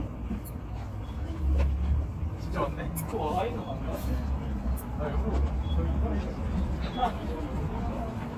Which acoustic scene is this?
street